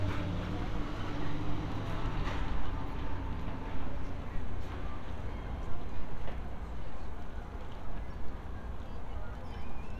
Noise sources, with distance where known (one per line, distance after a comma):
non-machinery impact